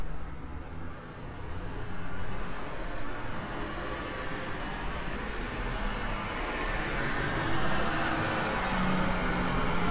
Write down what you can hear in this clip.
medium-sounding engine, large-sounding engine